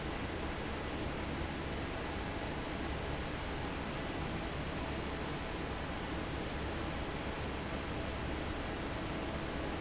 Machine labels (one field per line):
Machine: fan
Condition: normal